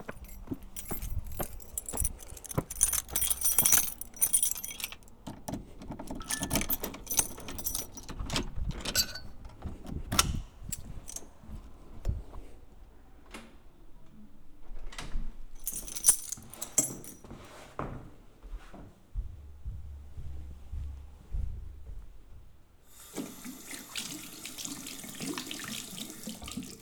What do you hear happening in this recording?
I walked up to my door, keys jangling, and unlocked it. While unlocking it, my phone received a notification. I entered, closed the door, removed my shoes, walked to the bathroom and washed my hands.